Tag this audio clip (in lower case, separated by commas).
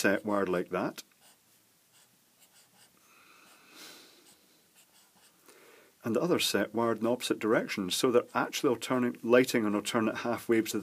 inside a small room, writing, speech